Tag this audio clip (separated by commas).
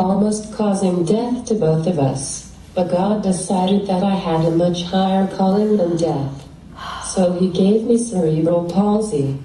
man speaking, Speech, monologue, woman speaking